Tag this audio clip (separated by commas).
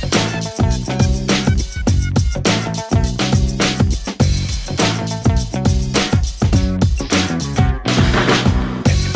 Music